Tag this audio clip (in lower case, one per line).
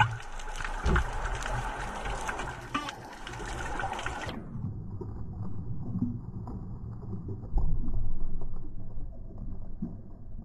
underwater bubbling